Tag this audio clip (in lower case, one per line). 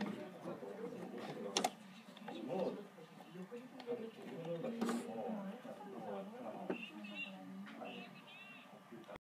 speech